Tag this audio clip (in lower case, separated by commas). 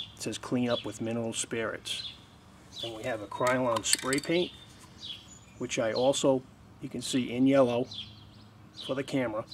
speech